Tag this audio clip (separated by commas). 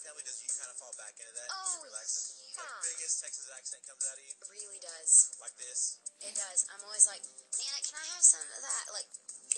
Speech, Music